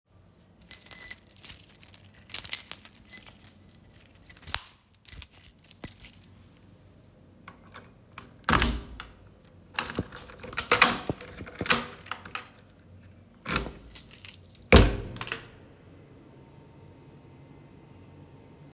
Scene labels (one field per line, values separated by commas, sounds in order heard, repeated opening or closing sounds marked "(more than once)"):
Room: hallway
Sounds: keys, door (more than once)